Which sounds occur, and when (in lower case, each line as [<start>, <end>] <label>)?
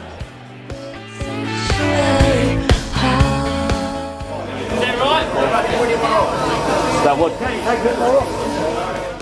[0.01, 4.18] music
[1.14, 1.37] female singing
[1.71, 2.66] female singing
[2.89, 4.23] female singing
[4.71, 6.22] man speaking
[5.49, 9.21] mechanisms
[6.92, 8.28] man speaking
[8.60, 9.13] man speaking